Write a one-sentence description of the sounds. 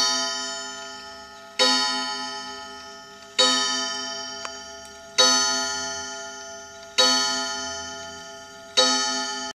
Clock chiming to announce the time